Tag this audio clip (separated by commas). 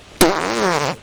Fart